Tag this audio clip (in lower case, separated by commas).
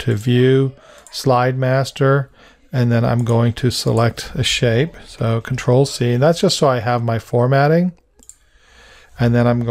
speech